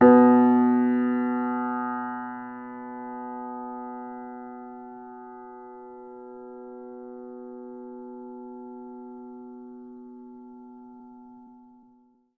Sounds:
Keyboard (musical), Piano, Music, Musical instrument

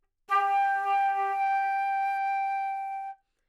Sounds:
Musical instrument, Music, woodwind instrument

